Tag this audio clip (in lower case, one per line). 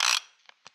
tools
mechanisms
pawl